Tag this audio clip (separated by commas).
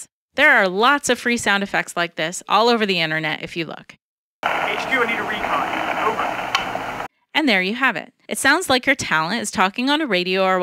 police radio chatter